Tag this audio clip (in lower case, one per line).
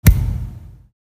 thump